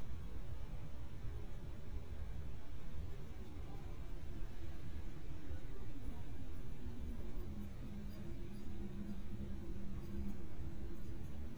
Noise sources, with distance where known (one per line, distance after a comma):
background noise